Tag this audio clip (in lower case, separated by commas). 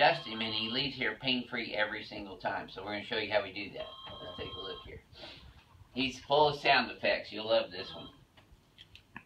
speech